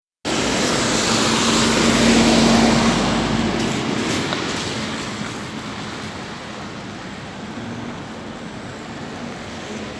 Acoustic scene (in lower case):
street